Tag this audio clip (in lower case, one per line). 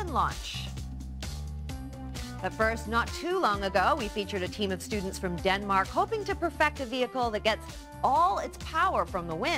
music
speech